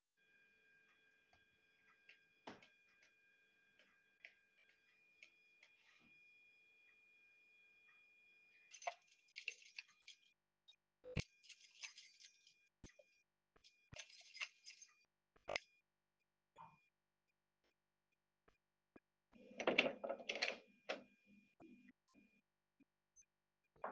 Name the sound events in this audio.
footsteps, keys, door